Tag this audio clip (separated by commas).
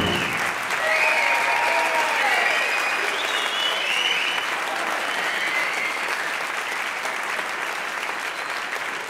Applause, people clapping